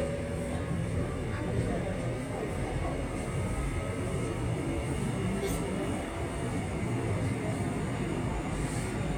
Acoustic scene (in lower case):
subway train